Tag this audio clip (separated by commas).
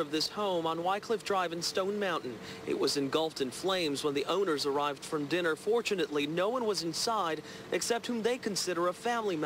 Speech